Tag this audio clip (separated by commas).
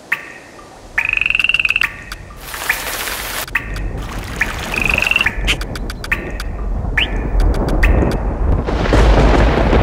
Music